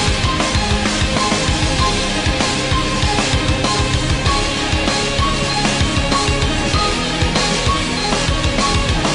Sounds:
guitar, music, musical instrument

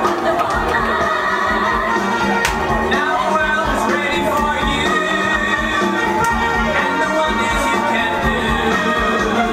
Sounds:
music of latin america, music

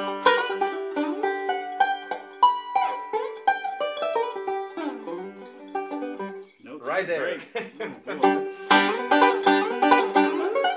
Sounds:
banjo, speech, country, bluegrass, music, plucked string instrument, mandolin, musical instrument

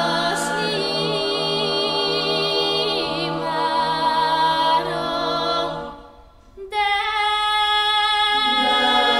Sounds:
a capella, choir

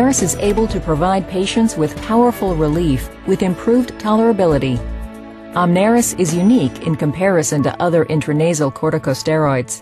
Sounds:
speech, music

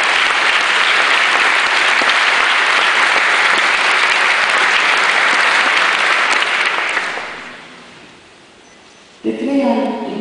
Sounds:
speech, female speech, narration

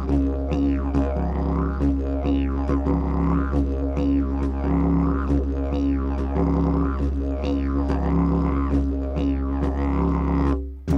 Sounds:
playing didgeridoo

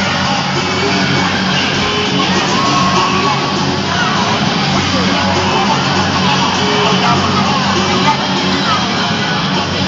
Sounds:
speech, music

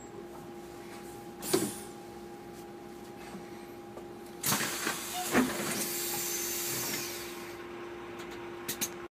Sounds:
vehicle, motor vehicle (road)

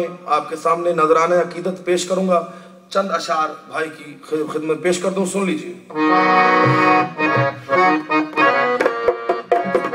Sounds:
speech, music

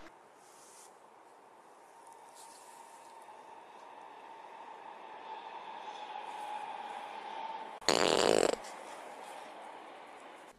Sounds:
fart

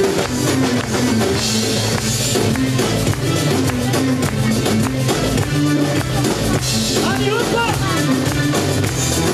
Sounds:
soul music, speech, ska, music, funk, independent music

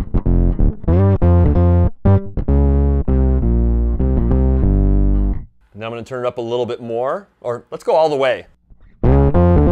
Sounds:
music, guitar, plucked string instrument, musical instrument, bass guitar, distortion

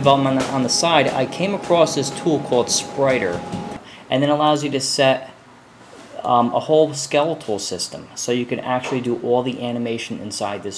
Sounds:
speech

